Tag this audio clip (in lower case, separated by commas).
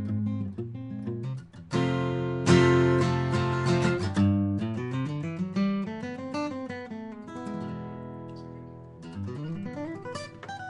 guitar, plucked string instrument, music